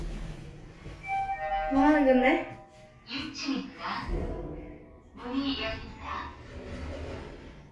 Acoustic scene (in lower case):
elevator